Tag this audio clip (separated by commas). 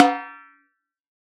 Music, Snare drum, Musical instrument, Drum, Percussion